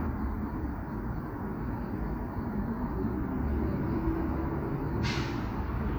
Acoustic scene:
street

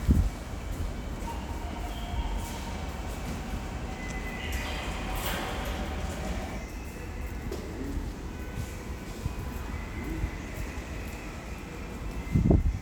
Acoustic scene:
subway station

